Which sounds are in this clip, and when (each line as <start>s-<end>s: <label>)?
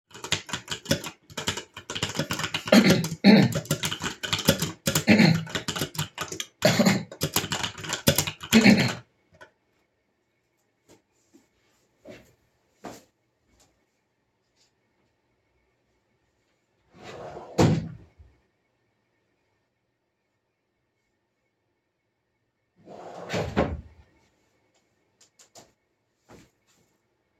0.0s-9.0s: keyboard typing
16.9s-18.5s: wardrobe or drawer
22.8s-23.9s: wardrobe or drawer